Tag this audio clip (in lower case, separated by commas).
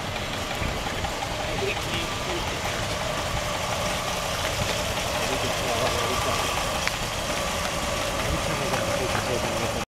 speech, vehicle